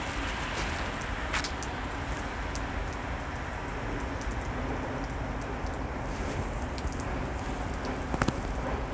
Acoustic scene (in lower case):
street